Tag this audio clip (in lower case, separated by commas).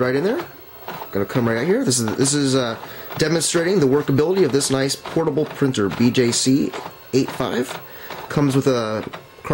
printer, speech